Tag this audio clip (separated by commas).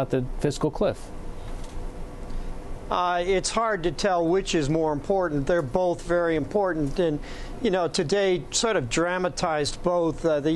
Speech